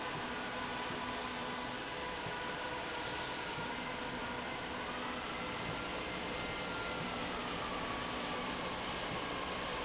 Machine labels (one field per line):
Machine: slide rail